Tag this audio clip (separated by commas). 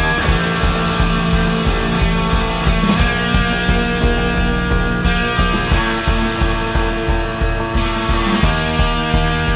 Progressive rock, Music